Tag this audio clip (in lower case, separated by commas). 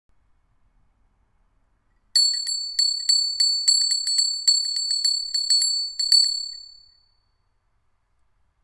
bell